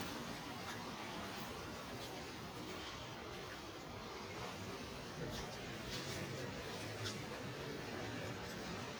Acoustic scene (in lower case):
residential area